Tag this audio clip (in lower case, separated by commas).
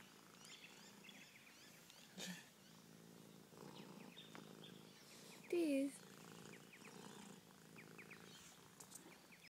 speech, pets, cat